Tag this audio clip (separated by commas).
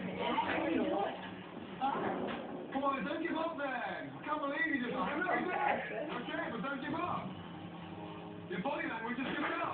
inside a small room, Speech